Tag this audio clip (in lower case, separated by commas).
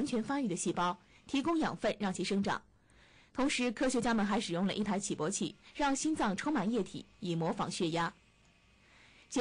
speech